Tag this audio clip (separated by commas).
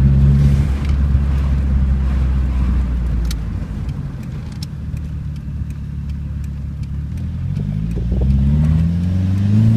Vehicle, Car, Motor vehicle (road)